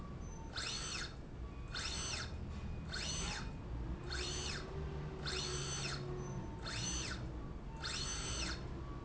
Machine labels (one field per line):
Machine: slide rail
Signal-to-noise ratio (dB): 0 dB